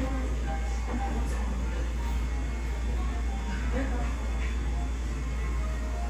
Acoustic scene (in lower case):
cafe